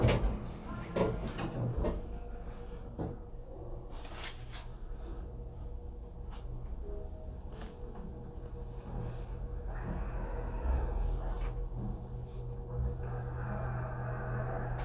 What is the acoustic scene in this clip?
elevator